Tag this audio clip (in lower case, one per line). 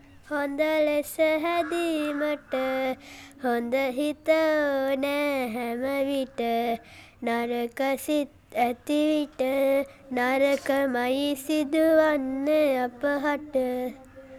human voice
singing